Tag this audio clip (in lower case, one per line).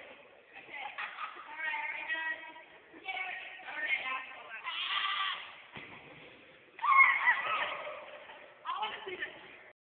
speech